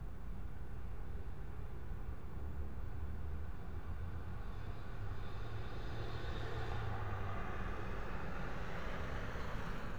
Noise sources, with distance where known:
background noise

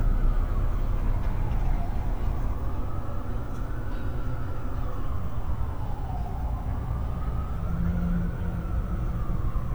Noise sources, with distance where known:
siren, far

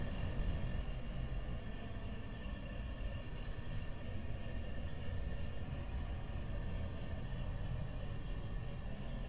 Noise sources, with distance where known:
background noise

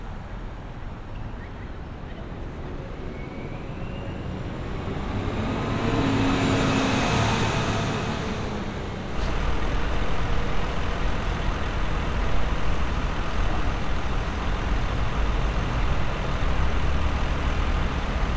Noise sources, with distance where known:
large-sounding engine, near

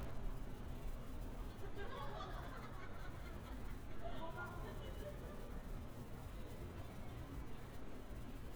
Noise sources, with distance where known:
person or small group talking, far

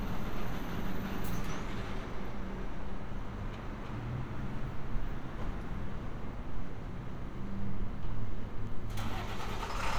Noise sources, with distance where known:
medium-sounding engine, far; large-sounding engine, near

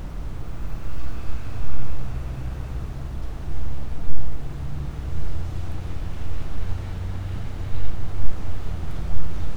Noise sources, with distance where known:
engine of unclear size, far

